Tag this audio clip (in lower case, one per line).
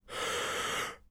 respiratory sounds
breathing